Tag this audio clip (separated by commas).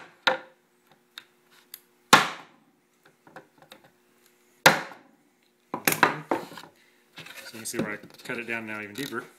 Wood, Speech, Tools